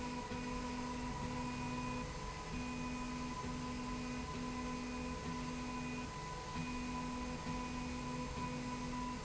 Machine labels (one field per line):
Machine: slide rail